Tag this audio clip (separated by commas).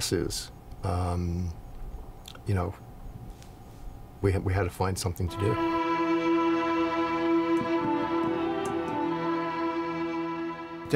Cello, Music